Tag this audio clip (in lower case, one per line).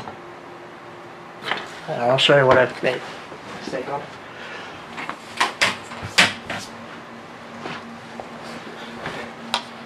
inside a small room
speech